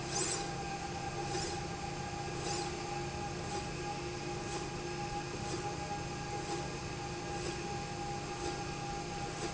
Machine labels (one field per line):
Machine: slide rail